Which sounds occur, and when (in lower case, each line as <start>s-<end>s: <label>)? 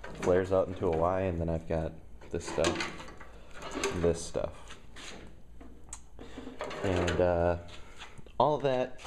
0.0s-9.0s: background noise
0.1s-1.9s: man speaking
2.2s-3.0s: man speaking
3.5s-4.4s: man speaking
6.8s-7.7s: man speaking
8.4s-8.9s: man speaking